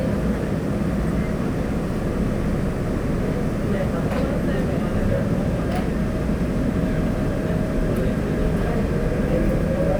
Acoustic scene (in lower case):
subway train